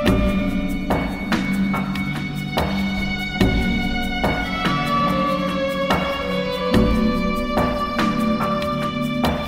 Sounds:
Musical instrument, Violin, Music

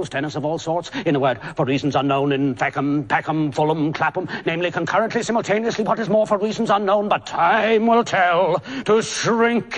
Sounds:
Speech, Male speech

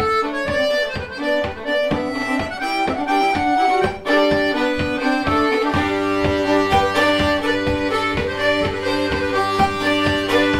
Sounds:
Music

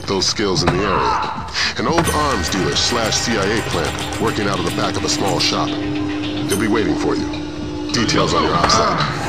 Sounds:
Music, Speech

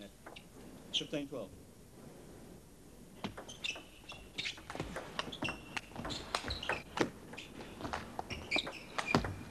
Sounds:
Speech

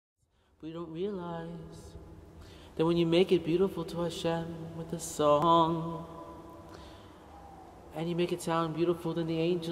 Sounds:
Shout, Music

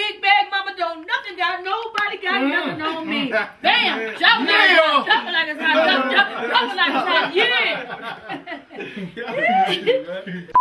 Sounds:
Speech

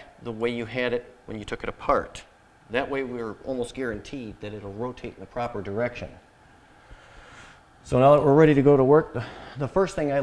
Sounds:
Speech

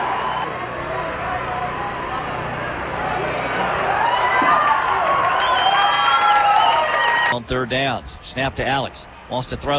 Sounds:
Speech

